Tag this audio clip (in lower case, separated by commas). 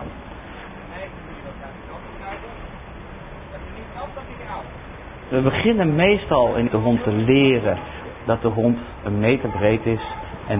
speech